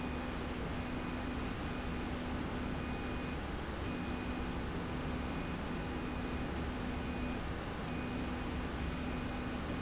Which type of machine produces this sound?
slide rail